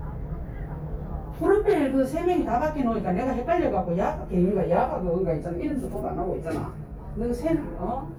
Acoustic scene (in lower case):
elevator